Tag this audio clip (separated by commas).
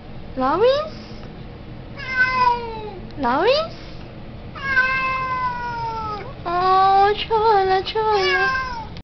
Speech, pets, Meow, Animal, Cat